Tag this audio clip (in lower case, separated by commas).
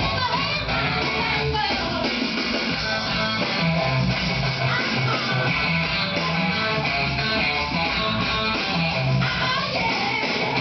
music, guitar, musical instrument